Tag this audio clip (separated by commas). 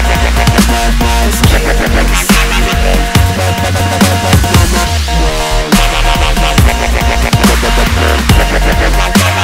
Dubstep, Music